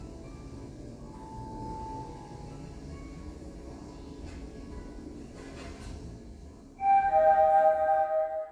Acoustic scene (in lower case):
elevator